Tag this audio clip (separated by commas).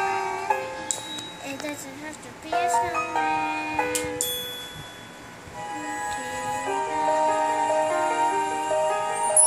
Child singing, Speech, Music